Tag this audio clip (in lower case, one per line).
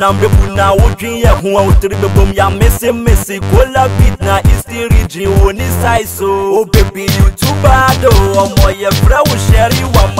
rock and roll
music